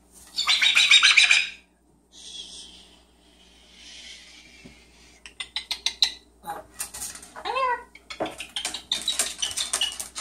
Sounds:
bird squawking

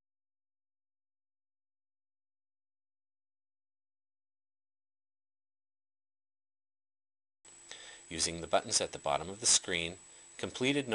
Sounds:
Speech

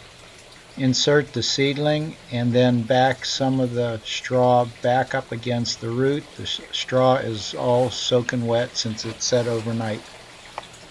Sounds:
outside, rural or natural, Speech

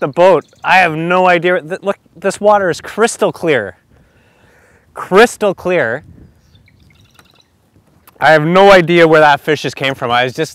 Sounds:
Speech

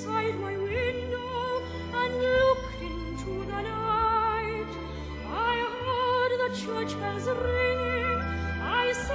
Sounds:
Music, Female singing

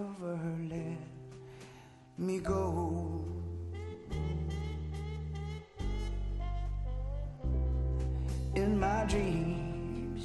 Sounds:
Music, Male singing

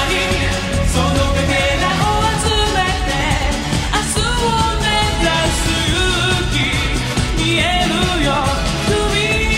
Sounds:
Music, Music of Asia

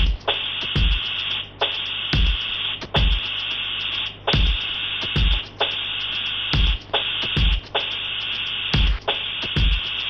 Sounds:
Sampler, Music, Musical instrument

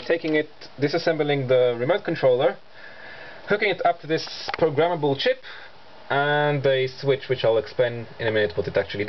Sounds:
Speech

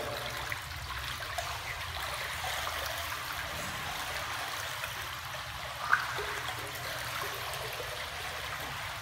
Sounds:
swimming

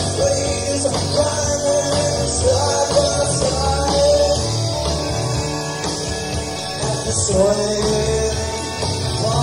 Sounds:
Music, Roll

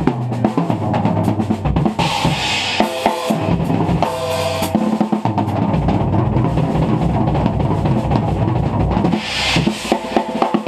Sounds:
Drum kit, Drum, Drum roll, Musical instrument, Music

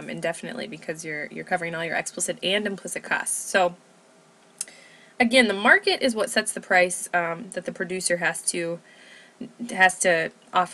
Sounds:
Speech

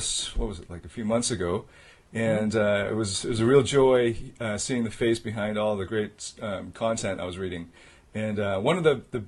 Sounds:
Speech

